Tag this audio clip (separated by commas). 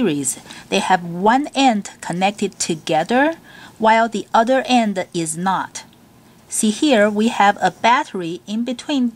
Speech